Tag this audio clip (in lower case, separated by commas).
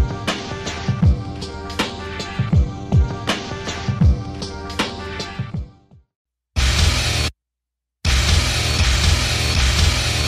music, rhythm and blues